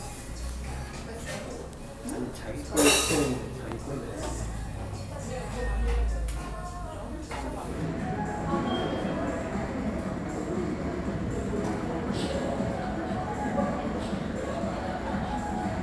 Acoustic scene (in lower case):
cafe